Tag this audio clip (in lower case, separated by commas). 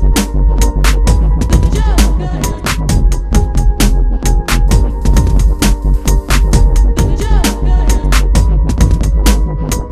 music, dubstep, electronic music